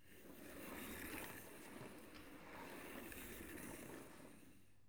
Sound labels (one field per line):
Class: furniture moving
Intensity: medium